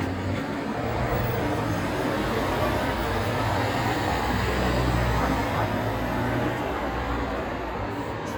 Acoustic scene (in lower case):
street